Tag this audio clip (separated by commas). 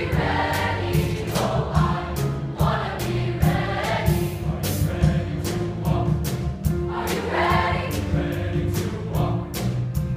Music